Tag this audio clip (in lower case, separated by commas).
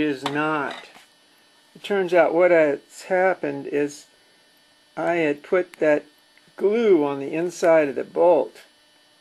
speech